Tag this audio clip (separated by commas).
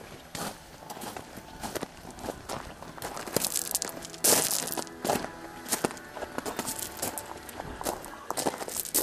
Walk